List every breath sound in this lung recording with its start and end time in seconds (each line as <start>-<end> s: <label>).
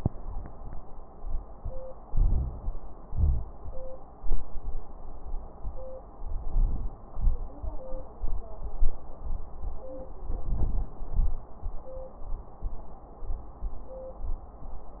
2.11-2.62 s: inhalation
2.11-2.62 s: crackles
3.09-3.48 s: exhalation
3.09-3.48 s: wheeze
6.18-6.91 s: inhalation
7.08-7.50 s: exhalation
10.20-10.91 s: inhalation
10.20-10.91 s: crackles
11.01-11.49 s: exhalation